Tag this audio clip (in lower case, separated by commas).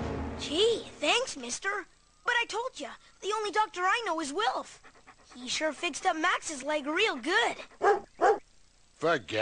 speech, music